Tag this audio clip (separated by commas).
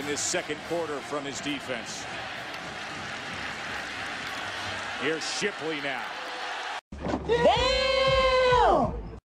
Speech